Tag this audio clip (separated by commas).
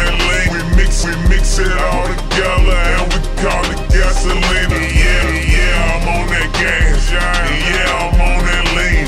Music